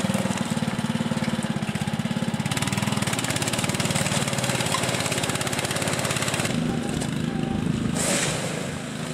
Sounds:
Vehicle

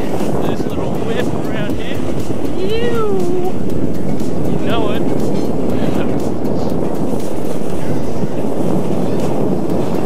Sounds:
skiing

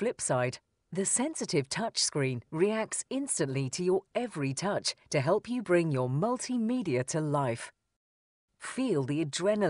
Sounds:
Speech

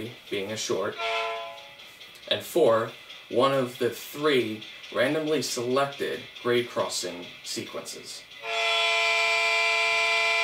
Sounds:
Speech

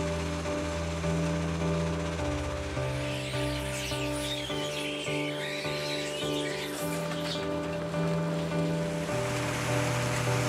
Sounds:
Music, Vehicle

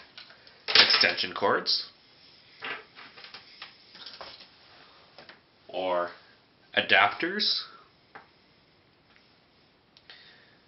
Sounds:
Speech

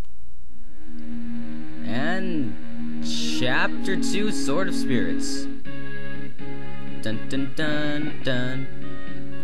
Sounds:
Music, Speech

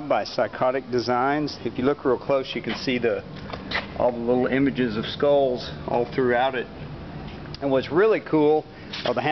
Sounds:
Speech

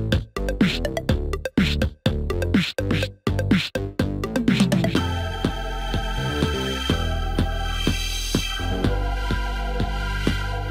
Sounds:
Electronica, Music

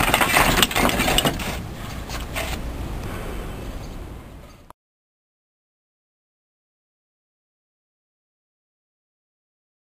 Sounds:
Breaking

